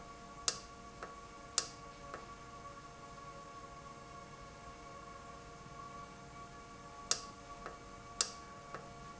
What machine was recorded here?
valve